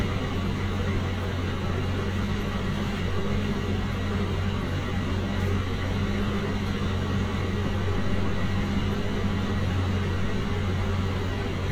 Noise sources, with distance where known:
large-sounding engine

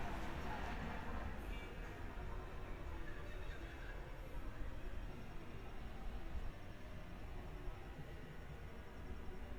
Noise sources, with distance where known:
person or small group talking, far

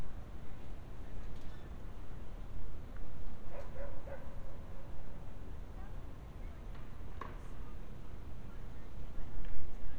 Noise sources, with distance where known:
dog barking or whining, far

